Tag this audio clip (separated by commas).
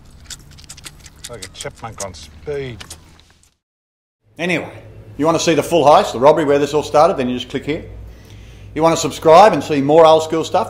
Speech